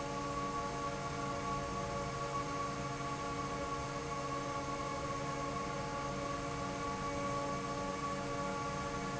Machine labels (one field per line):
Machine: fan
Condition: normal